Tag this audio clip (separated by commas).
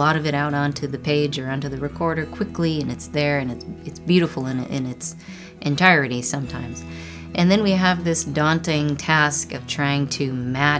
Music, Speech